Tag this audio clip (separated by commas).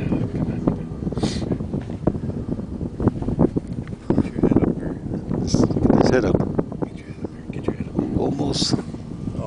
Speech